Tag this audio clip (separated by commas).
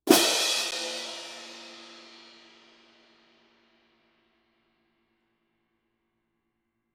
Percussion, Music, Crash cymbal, Cymbal, Musical instrument